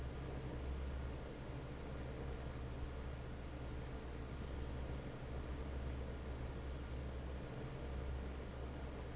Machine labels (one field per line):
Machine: fan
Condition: normal